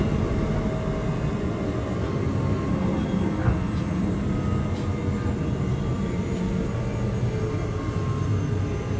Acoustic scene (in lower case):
subway train